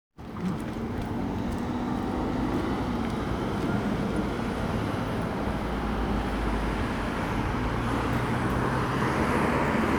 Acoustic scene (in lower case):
street